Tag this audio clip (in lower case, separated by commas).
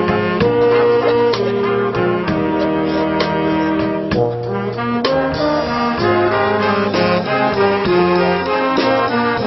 outside, urban or man-made, music